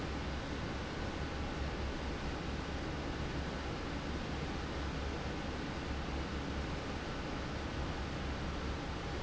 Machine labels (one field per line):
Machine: fan